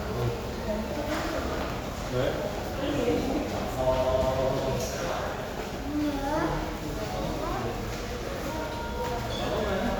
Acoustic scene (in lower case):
crowded indoor space